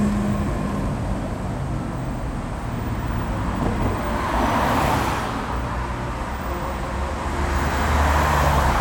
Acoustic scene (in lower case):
street